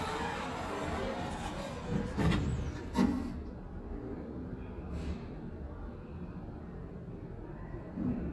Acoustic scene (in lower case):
elevator